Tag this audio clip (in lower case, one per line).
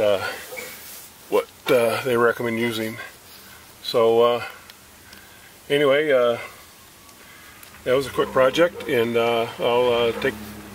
speech
outside, urban or man-made